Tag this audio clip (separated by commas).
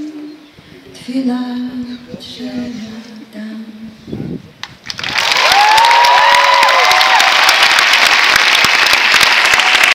Speech